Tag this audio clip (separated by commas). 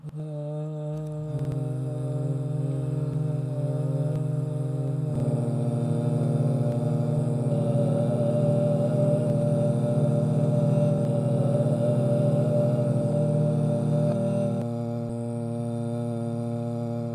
Human voice, Singing